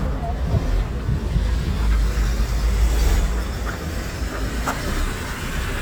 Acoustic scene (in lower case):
street